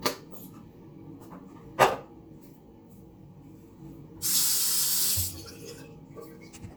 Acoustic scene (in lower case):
restroom